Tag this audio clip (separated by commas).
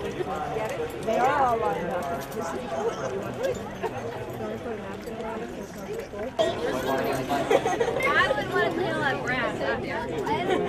Speech, Chatter